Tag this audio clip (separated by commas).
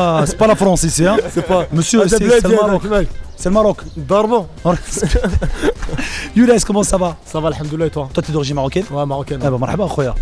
Music, Speech